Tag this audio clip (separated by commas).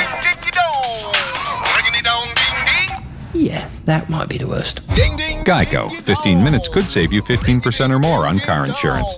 Music, Speech